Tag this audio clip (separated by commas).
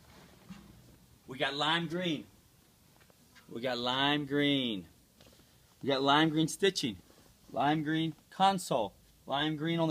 Speech